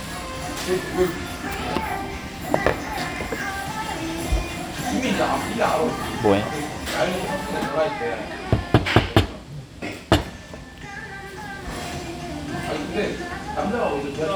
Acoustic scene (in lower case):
restaurant